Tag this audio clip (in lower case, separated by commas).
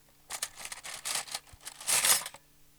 home sounds, cutlery